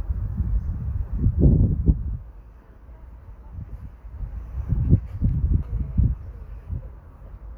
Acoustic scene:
park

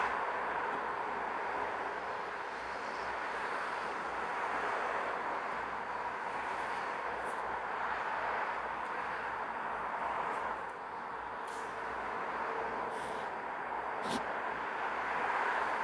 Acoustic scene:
street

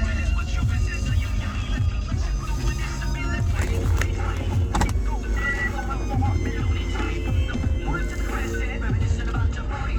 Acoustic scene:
car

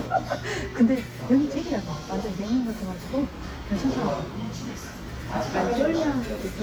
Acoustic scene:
crowded indoor space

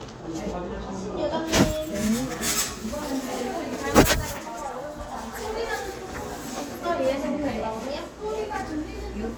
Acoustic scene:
crowded indoor space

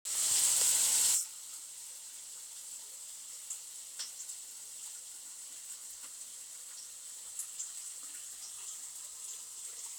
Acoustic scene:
kitchen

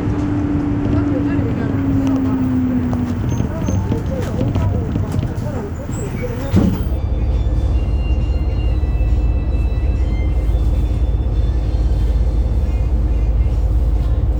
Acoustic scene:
bus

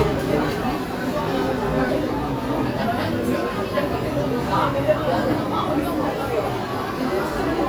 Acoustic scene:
restaurant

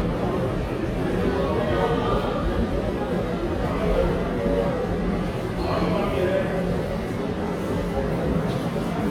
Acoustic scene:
subway station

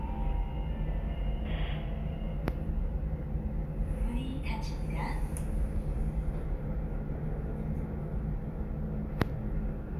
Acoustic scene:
elevator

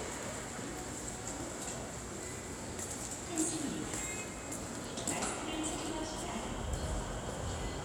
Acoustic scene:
subway station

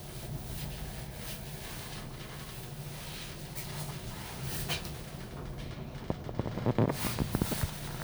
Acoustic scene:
elevator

